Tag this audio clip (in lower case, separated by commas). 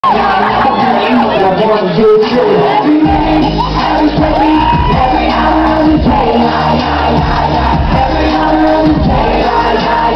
pop music, crowd, singing